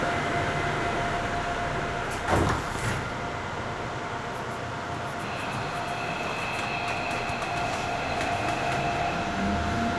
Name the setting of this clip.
subway train